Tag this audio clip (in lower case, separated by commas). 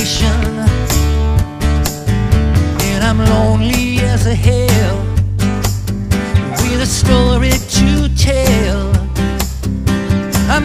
music